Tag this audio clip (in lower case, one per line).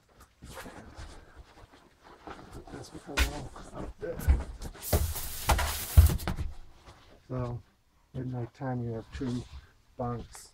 speech
inside a small room